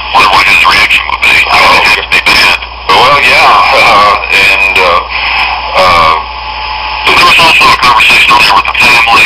A man is speaking through a telephone speaker that breaks up a little